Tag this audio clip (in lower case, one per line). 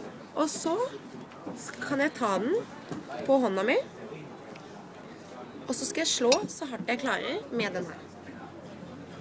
speech